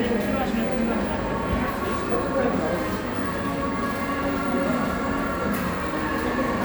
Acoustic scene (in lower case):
cafe